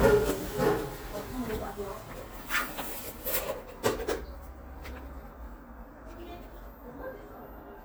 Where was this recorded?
in an elevator